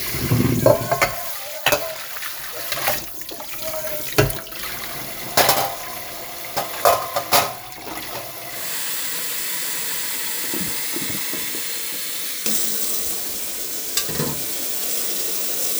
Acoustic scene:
kitchen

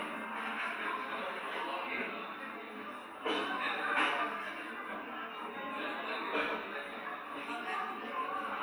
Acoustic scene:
cafe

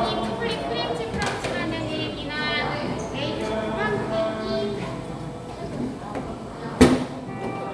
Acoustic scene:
cafe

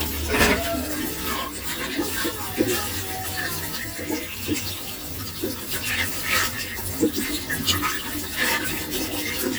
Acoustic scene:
kitchen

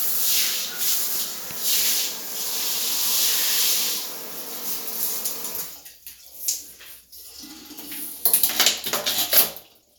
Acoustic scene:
restroom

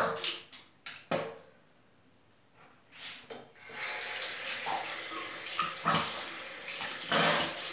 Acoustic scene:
restroom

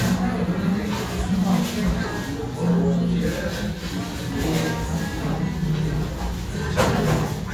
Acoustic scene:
restaurant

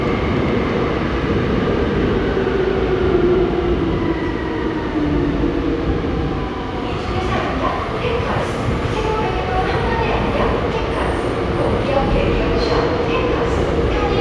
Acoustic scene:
subway station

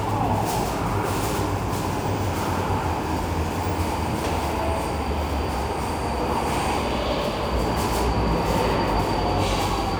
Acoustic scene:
subway station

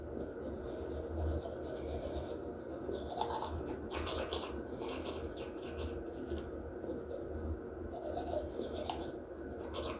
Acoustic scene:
restroom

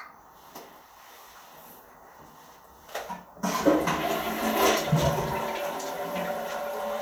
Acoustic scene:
restroom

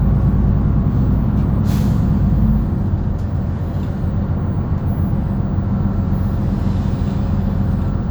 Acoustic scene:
bus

